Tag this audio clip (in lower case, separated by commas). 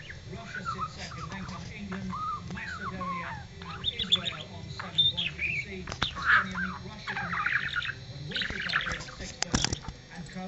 bird, pets, speech